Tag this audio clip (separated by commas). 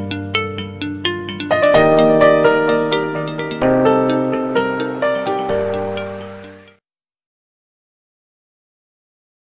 Music, Theme music